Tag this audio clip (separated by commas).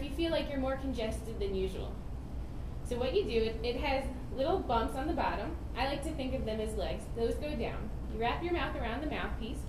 Speech